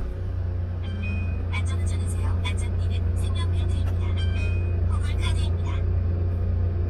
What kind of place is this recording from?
car